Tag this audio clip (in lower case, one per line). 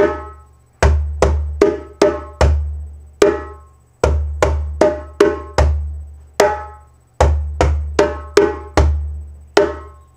playing djembe